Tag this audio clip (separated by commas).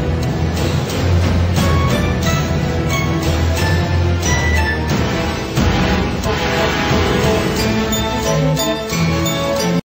Music